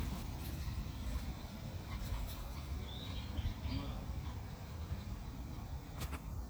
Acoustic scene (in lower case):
park